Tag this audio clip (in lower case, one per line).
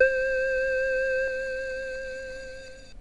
musical instrument
keyboard (musical)
music